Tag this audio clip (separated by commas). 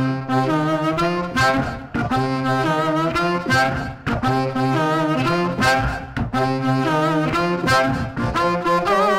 Harmonica, woodwind instrument